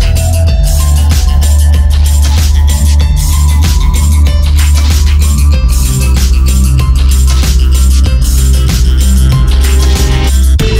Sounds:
Music, Trance music, Electronic music

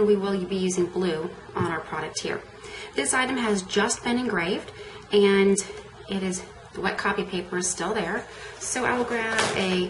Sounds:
Speech

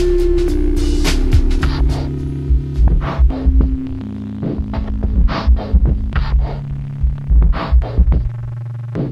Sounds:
Hum, Throbbing

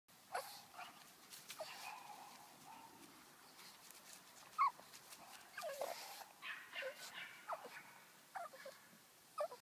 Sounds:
Domestic animals, Dog, Animal

